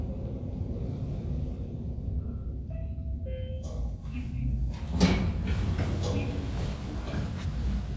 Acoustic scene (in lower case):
elevator